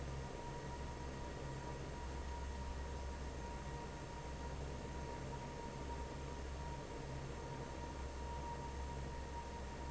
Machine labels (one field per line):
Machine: fan